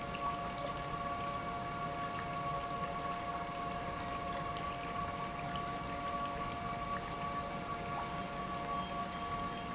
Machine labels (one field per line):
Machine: pump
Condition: normal